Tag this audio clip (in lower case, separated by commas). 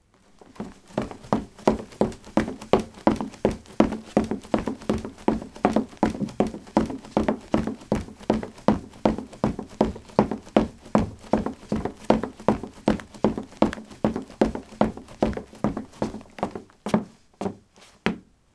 run